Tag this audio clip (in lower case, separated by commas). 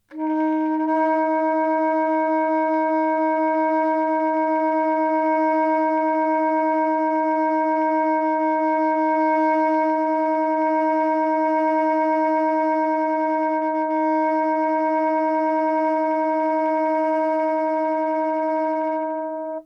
music, musical instrument, wind instrument